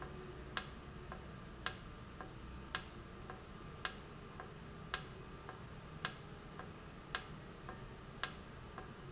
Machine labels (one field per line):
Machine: valve